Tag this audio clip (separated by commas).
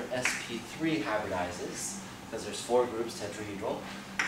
Speech